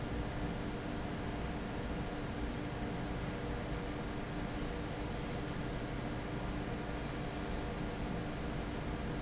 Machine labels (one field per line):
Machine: fan